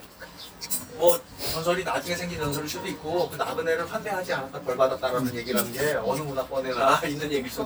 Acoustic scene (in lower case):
restaurant